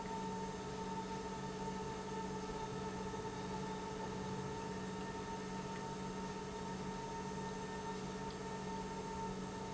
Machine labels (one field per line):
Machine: pump